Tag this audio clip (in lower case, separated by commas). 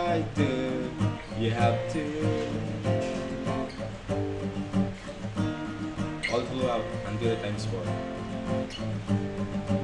musical instrument, music, plucked string instrument, strum, guitar